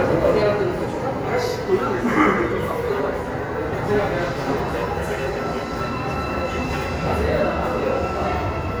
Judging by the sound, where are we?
in a subway station